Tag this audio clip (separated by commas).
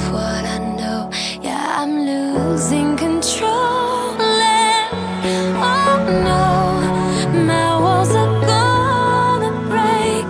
Music, Pop music